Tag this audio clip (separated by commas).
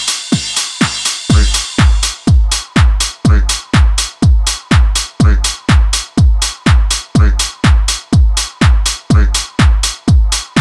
Music